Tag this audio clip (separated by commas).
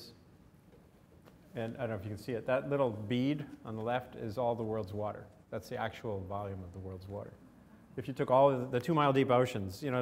Speech